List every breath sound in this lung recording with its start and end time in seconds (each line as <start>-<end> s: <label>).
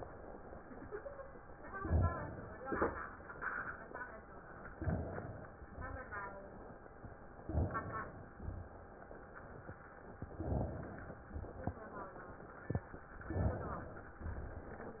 1.71-2.56 s: inhalation
2.56-3.04 s: exhalation
4.76-5.60 s: inhalation
5.60-6.24 s: exhalation
7.44-8.35 s: inhalation
8.37-8.90 s: exhalation
10.38-11.21 s: inhalation
11.33-11.86 s: exhalation
13.26-14.16 s: inhalation
14.13-15.00 s: exhalation